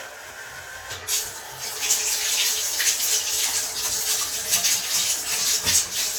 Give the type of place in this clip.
restroom